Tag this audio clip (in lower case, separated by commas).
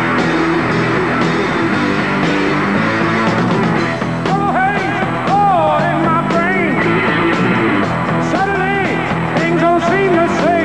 guitar, strum, music, bass guitar, plucked string instrument, musical instrument